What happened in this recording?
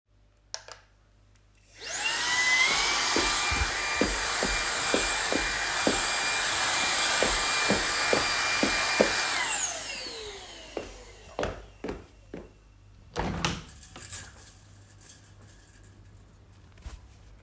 I carried my phone while turning on the vacuum cleaner. I walked around the living room vacuuming, with my footsteps audible between passes. After finishing, I turned off the vacuum cleaner and walked to the window to open it and air out the room.